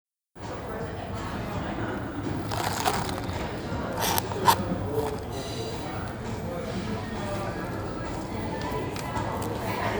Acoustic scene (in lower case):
cafe